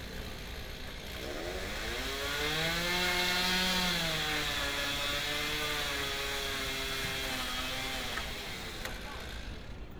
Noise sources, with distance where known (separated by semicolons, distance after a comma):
unidentified powered saw, near